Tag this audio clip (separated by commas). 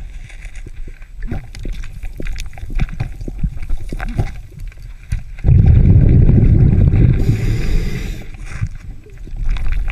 scuba diving